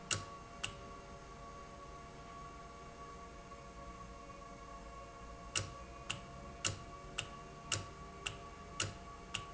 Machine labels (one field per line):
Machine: valve